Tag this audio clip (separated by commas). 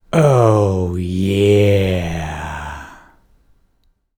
Human voice, Speech, man speaking